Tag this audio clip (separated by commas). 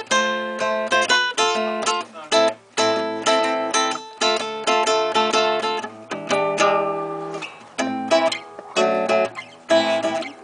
Musical instrument, Guitar, Music